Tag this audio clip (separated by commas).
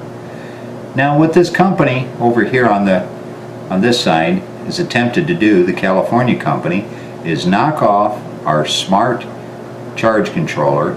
Speech